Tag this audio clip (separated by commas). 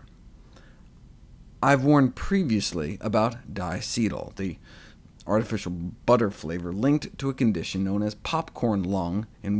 Speech